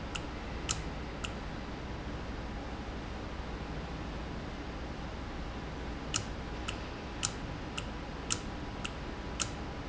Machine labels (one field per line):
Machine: valve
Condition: normal